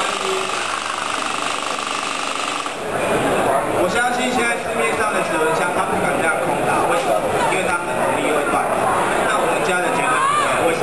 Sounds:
Speech

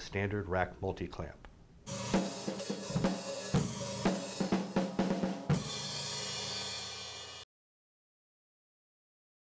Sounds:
Music, Speech

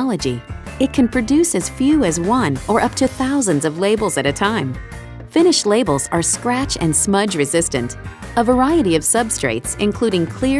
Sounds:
Music, Speech

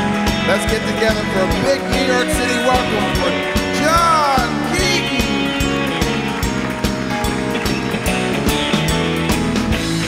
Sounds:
Country, Music, Bluegrass, Speech

